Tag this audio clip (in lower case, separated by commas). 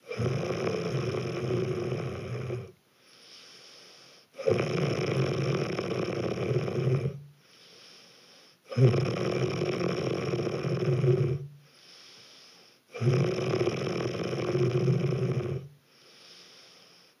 breathing, respiratory sounds